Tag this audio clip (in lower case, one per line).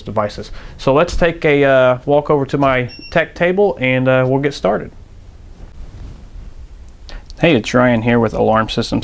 speech